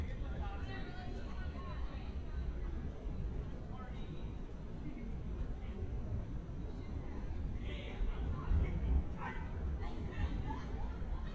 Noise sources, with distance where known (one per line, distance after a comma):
person or small group talking